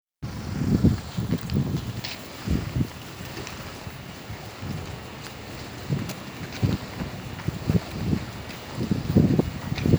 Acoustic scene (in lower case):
residential area